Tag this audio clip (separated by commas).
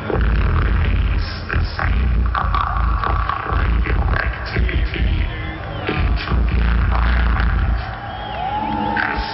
Speech